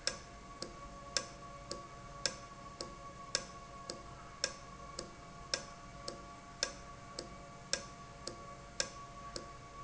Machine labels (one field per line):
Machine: valve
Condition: normal